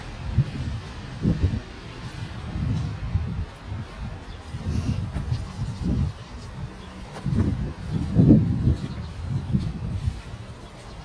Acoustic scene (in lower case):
residential area